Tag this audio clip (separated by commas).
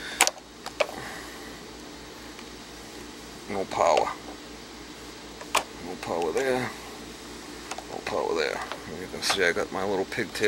Speech